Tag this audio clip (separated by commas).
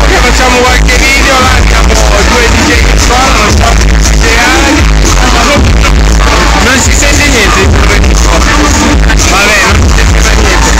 Speech, Music